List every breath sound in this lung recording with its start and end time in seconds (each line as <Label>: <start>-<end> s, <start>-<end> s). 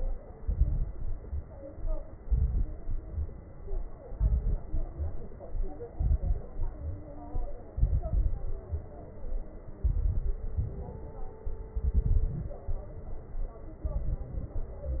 Inhalation: 0.34-0.85 s, 2.20-2.81 s, 4.12-4.62 s, 5.93-6.46 s, 7.75-8.64 s, 9.81-10.56 s, 11.78-12.54 s, 13.89-14.55 s
Exhalation: 0.91-1.54 s, 2.85-3.46 s, 4.69-5.38 s, 6.50-7.03 s, 8.70-9.59 s, 10.60-11.36 s, 12.71-13.59 s
Crackles: 0.34-0.85 s, 0.91-1.54 s, 2.20-2.81 s, 2.85-3.46 s, 4.12-4.62 s, 4.69-5.38 s, 5.93-6.46 s, 6.50-7.03 s, 7.75-8.64 s, 8.70-9.59 s, 9.81-10.56 s, 11.78-12.54 s, 13.89-14.55 s